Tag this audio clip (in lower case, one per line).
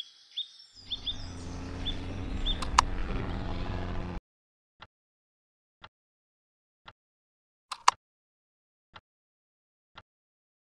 bird
chirp
bird vocalization